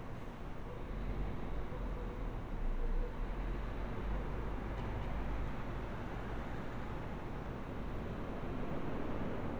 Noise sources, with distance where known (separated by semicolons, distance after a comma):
engine of unclear size